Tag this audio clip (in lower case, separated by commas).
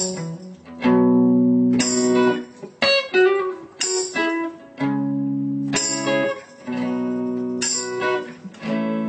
strum, music